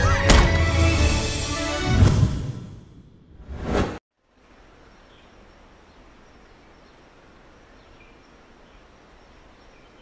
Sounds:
music

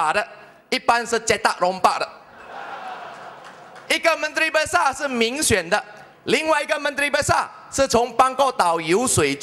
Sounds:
man speaking
speech
narration

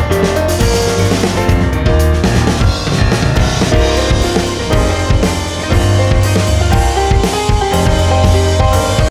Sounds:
music

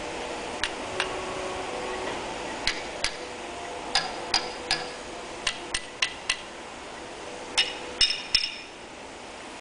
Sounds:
vehicle

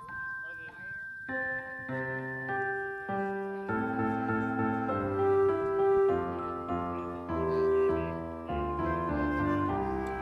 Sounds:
music
speech

